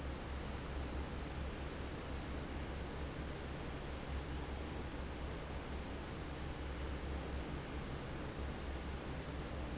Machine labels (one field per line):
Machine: fan